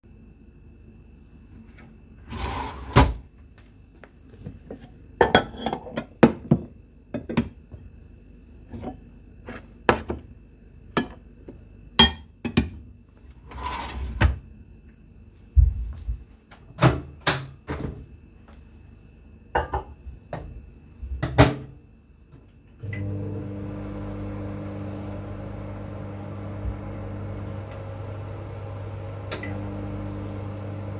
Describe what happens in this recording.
I open a drawer, take a plate from the drawer, close the drawer, open the microwave, put the plate into the microwave and turn it on. The microwave is running until the end of the recording.